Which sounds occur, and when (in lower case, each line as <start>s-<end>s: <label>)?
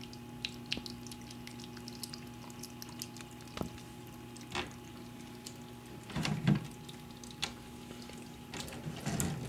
0.0s-9.4s: mechanisms
0.0s-9.4s: trickle
3.6s-3.7s: generic impact sounds
4.5s-4.7s: generic impact sounds
6.1s-6.6s: generic impact sounds
7.4s-7.5s: generic impact sounds
8.5s-9.4s: generic impact sounds